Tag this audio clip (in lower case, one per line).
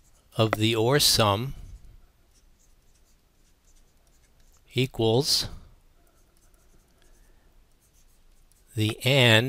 speech